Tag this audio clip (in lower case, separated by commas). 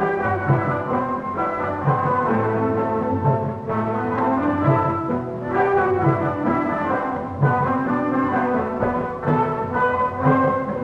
saxophone, brass instrument